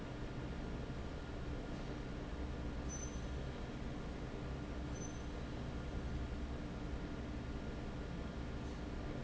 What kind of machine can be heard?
fan